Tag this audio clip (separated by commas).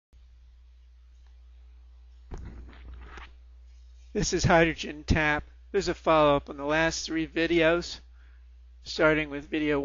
Speech